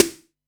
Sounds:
Music, Percussion, Musical instrument, Snare drum, Drum

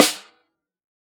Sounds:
Music, Snare drum, Percussion, Drum, Musical instrument

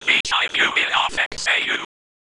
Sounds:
Whispering, Human voice

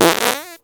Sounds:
Fart

